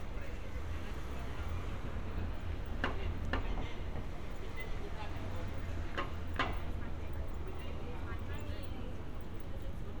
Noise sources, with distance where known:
person or small group talking, far

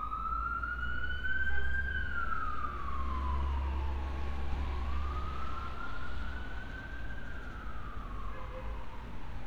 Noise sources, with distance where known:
siren, far

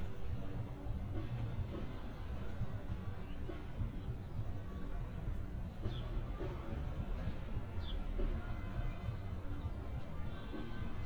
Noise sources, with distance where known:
music from a fixed source, far

